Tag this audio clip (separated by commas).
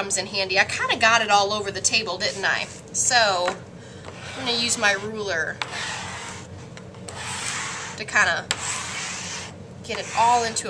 Speech